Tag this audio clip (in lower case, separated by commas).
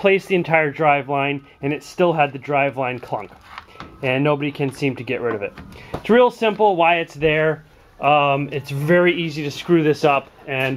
speech